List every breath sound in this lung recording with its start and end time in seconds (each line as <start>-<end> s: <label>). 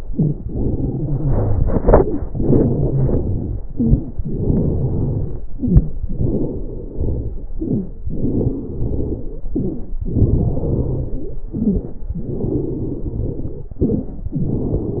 0.00-0.37 s: inhalation
0.00-0.37 s: crackles
0.44-1.64 s: exhalation
0.44-1.64 s: crackles
1.77-2.26 s: inhalation
1.78-2.24 s: crackles
2.33-3.54 s: exhalation
2.33-3.54 s: crackles
3.68-4.14 s: crackles
3.71-4.16 s: inhalation
4.25-5.45 s: exhalation
4.25-5.45 s: crackles
5.52-5.98 s: crackles
5.53-5.98 s: inhalation
6.10-7.42 s: exhalation
6.10-7.42 s: crackles
7.55-7.98 s: inhalation
7.55-7.98 s: crackles
8.09-9.40 s: exhalation
8.09-9.40 s: crackles
9.54-9.97 s: inhalation
9.54-9.97 s: crackles
10.08-11.37 s: exhalation
10.08-11.37 s: crackles
11.54-12.01 s: inhalation
11.54-12.01 s: crackles
12.12-13.74 s: exhalation
12.12-13.74 s: crackles
13.80-14.27 s: inhalation
13.80-14.27 s: crackles
14.35-15.00 s: exhalation
14.35-15.00 s: crackles